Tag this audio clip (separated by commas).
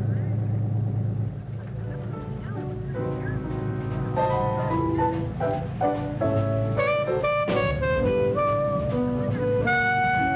Speech, Vehicle, Music